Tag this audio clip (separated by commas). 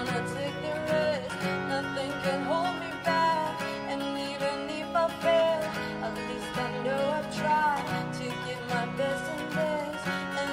Music